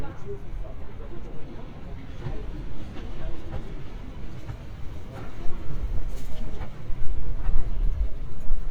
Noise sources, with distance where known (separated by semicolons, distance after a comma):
person or small group talking, far